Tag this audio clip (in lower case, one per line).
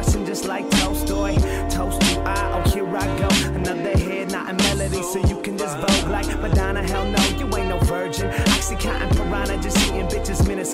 music